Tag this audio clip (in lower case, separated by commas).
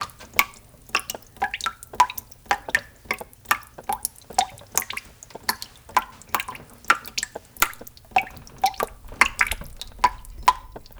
liquid, drip